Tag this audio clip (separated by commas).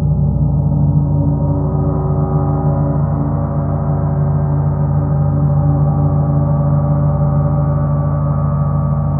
playing gong